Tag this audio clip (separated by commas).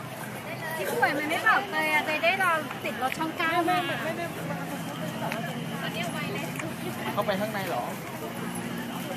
Speech